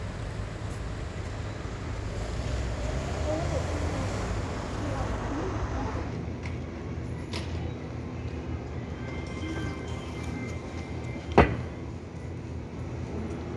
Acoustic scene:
residential area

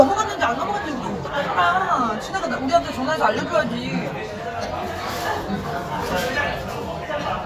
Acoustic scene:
crowded indoor space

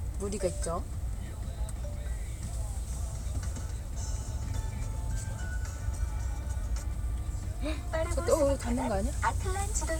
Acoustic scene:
car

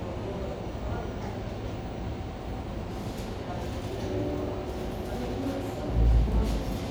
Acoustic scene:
cafe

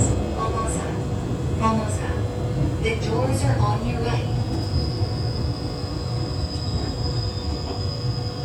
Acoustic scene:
subway train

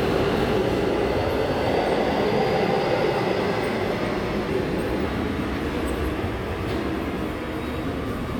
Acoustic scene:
subway station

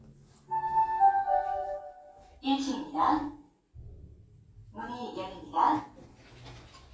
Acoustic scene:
elevator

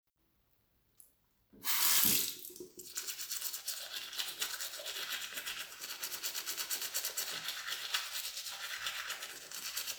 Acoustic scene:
restroom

